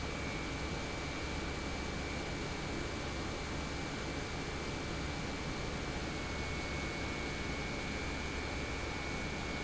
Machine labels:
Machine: pump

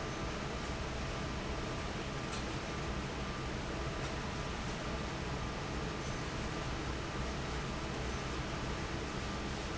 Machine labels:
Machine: fan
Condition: normal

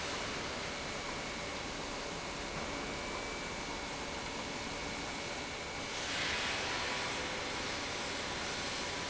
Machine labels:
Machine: pump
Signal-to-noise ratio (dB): -6 dB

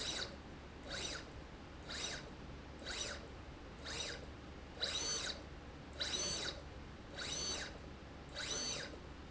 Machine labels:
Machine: slide rail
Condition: abnormal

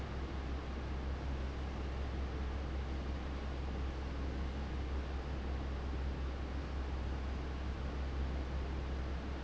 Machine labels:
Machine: fan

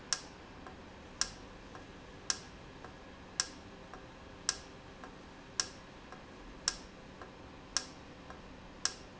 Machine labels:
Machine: valve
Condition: normal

